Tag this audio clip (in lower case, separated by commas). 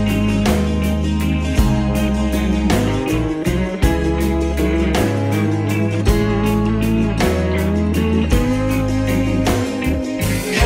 music